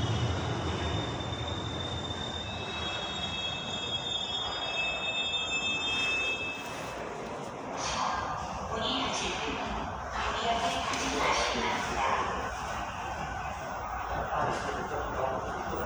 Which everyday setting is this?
subway station